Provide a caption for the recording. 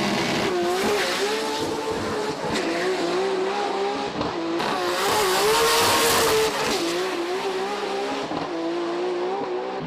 A race car is revving up its engine and takes off